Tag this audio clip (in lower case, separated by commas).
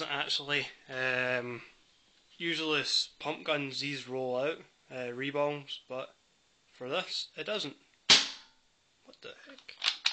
speech